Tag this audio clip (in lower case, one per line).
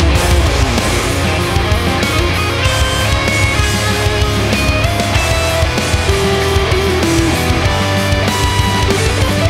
music
guitar
strum
musical instrument